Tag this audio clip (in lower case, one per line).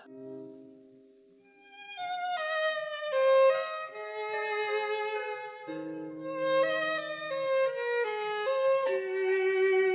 wind instrument